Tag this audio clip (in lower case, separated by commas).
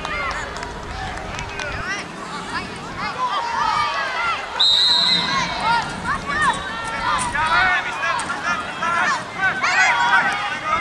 speech